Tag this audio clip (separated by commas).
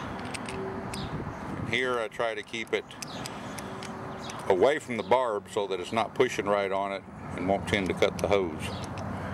Speech, Bird